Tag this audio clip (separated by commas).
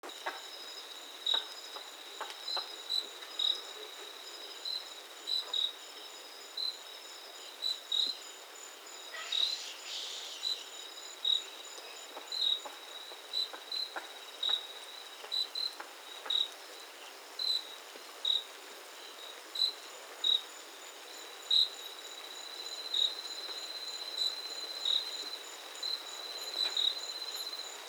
Animal, Wild animals, Insect